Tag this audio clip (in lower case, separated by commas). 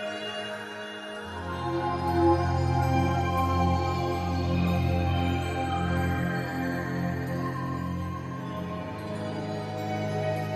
soundtrack music, music